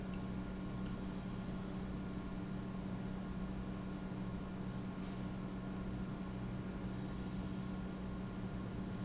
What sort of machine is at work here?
pump